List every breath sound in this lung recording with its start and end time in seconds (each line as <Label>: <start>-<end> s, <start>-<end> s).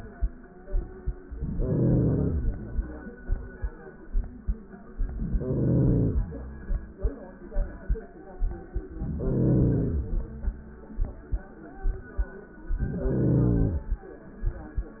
Inhalation: 1.29-2.68 s, 4.92-6.30 s, 8.88-10.27 s, 12.67-14.05 s